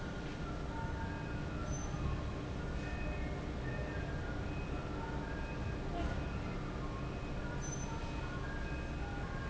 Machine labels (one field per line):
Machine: fan